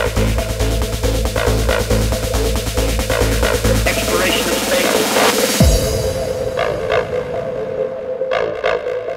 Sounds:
Music

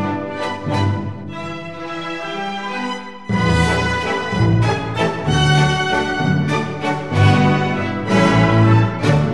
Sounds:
Music

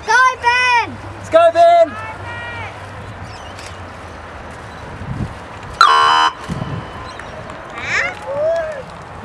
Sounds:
kayak, Vehicle, Speech

